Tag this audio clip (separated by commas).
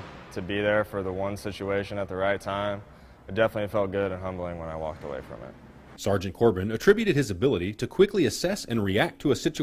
Speech